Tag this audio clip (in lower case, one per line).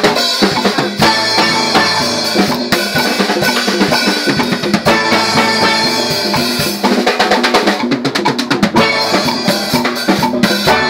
music
steelpan
drum